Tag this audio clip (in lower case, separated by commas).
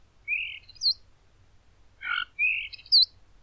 animal, bird, wild animals